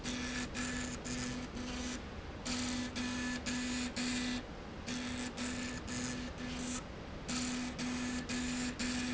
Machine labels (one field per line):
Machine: slide rail